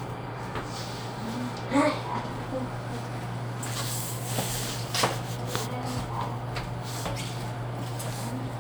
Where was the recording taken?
in an elevator